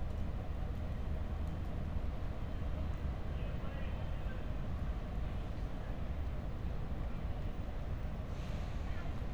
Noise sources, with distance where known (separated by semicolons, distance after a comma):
unidentified human voice, far